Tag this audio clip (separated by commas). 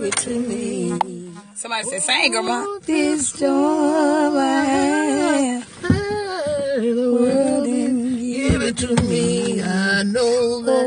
Female singing, Speech